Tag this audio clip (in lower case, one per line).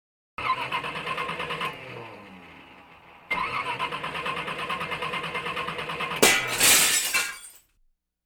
car
motor vehicle (road)
engine
vehicle
glass